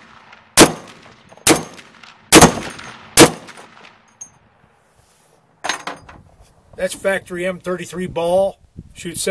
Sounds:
gunshot

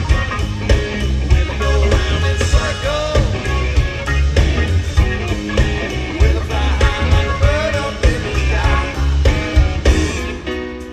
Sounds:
rock and roll
music

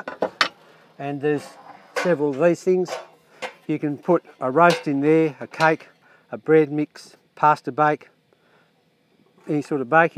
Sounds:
outside, rural or natural
speech

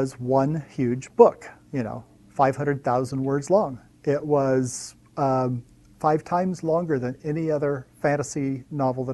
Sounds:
speech

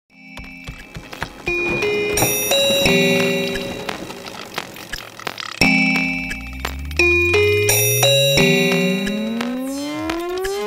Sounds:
music

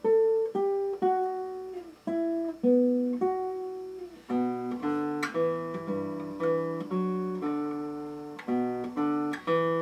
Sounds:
music

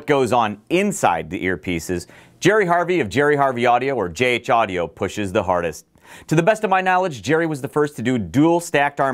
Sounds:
speech

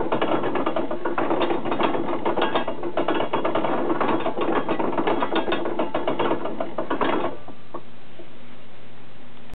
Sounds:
pulleys
gears
mechanisms
pawl

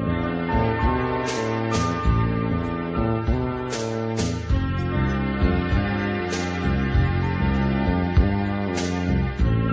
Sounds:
music

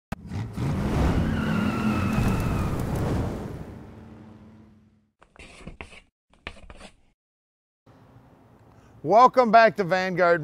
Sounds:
tire squeal
engine
car
vehicle
speech

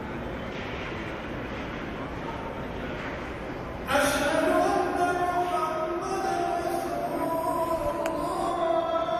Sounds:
speech
inside a large room or hall

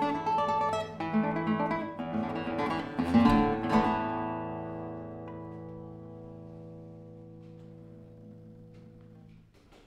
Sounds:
musical instrument
music
guitar
plucked string instrument
strum

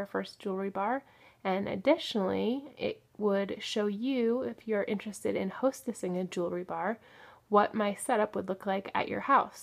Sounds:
speech

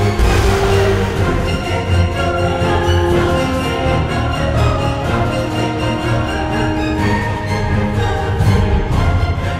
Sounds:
music
exciting music

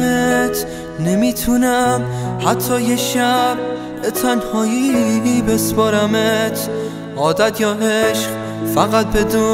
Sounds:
music

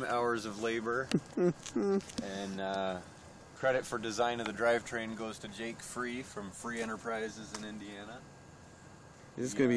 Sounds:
speech

